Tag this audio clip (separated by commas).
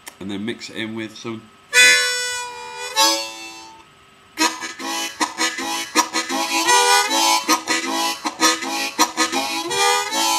playing harmonica